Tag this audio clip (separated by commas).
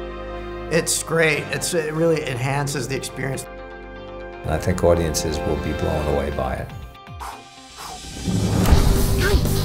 Speech, Music